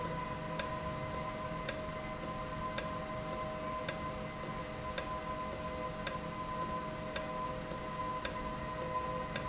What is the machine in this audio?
valve